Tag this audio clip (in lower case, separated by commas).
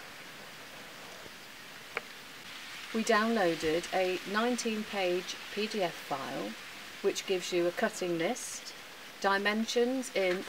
speech, inside a large room or hall